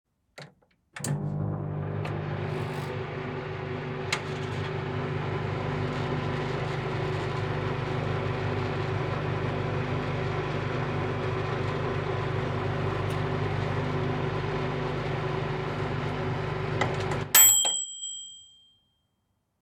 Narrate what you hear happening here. I pulled open the microwave door and placed my food inside. I closed it, punched in the time, and hit start. The microwave hummed as it ran and beeped a few times once it was done.